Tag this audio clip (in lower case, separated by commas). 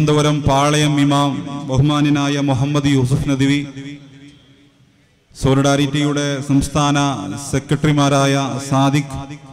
speech, monologue, male speech